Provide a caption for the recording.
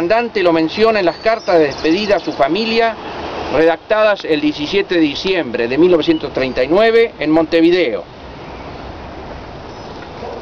A man talks in another language as if he is talking to people